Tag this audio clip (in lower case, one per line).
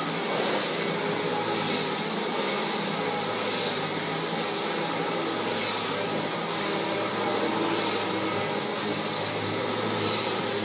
vacuum cleaner cleaning floors